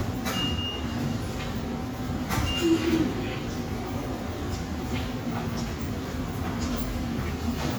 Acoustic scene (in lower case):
subway station